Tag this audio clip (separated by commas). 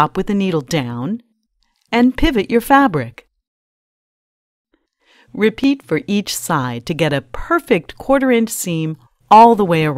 Speech